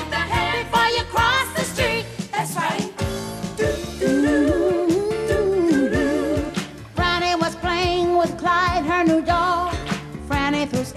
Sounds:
Singing, Music

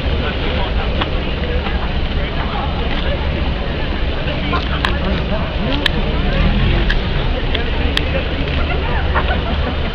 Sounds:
Speech, Car, Vehicle, Motor vehicle (road)

